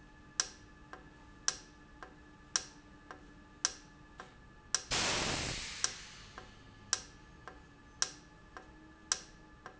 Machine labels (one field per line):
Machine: valve